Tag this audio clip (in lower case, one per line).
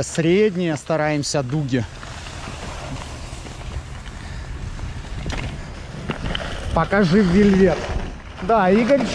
skiing